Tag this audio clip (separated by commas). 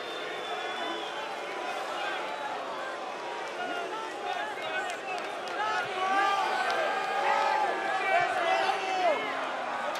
people booing